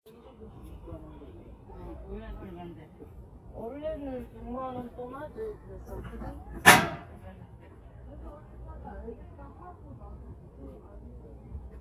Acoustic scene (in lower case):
residential area